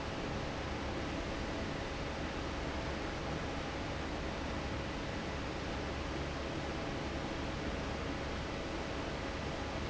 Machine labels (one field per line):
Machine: fan